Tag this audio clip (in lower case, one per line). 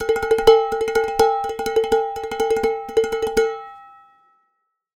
dishes, pots and pans
domestic sounds